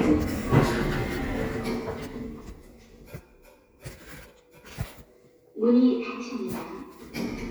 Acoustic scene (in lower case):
elevator